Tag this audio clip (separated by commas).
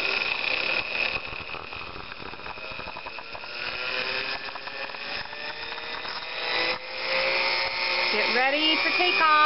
Blender